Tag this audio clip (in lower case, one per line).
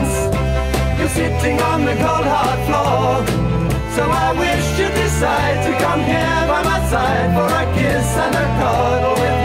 music